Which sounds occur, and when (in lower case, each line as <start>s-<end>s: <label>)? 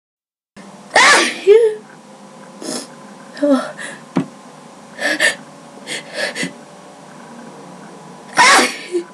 0.5s-9.1s: mechanisms
0.8s-1.7s: sneeze
2.5s-2.8s: breathing
3.2s-4.0s: breathing
3.3s-3.4s: tick
4.1s-4.2s: generic impact sounds
4.8s-5.4s: breathing
5.8s-6.5s: breathing
6.3s-6.5s: generic impact sounds
8.3s-9.0s: sneeze